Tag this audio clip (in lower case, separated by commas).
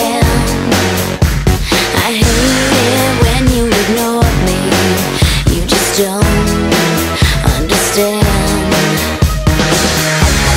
music